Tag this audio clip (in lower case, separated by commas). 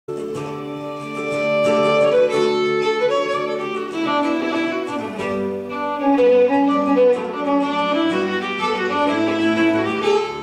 guitar, music, bowed string instrument, musical instrument, fiddle, plucked string instrument